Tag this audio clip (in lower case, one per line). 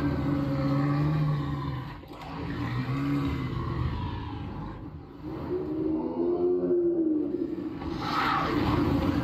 rustle